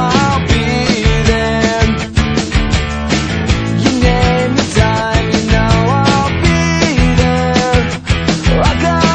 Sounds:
Music, Exciting music

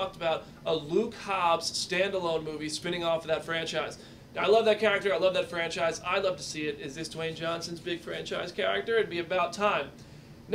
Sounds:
Speech

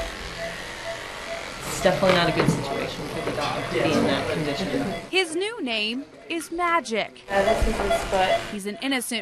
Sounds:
Speech

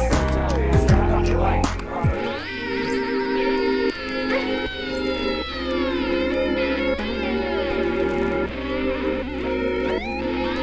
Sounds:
inside a large room or hall, Music

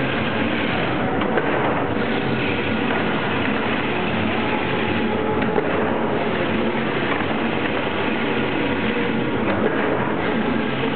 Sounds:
Heavy engine (low frequency)

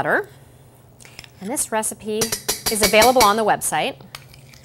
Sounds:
Speech

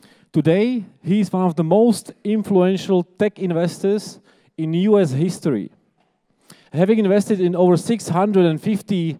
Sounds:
Speech

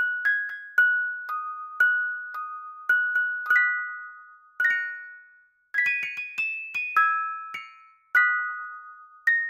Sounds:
Musical instrument, Piano, Music, Keyboard (musical)

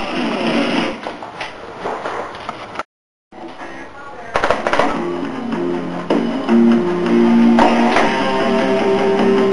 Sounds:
Guitar, Plucked string instrument, Music, Speech, Musical instrument

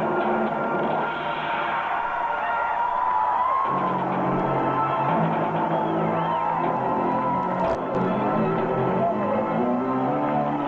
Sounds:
Music, Speech

